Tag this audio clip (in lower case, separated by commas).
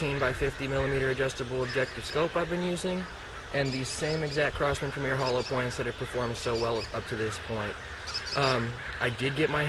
speech, bird